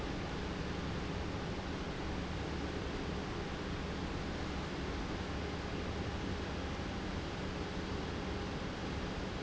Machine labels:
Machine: pump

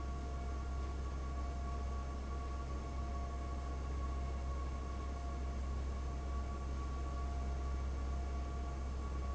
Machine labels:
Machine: fan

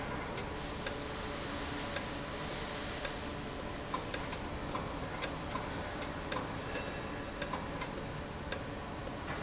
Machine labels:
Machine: valve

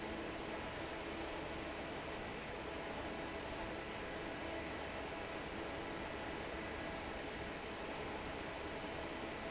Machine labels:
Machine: fan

